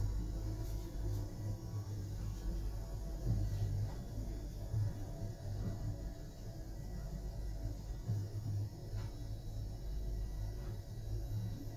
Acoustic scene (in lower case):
elevator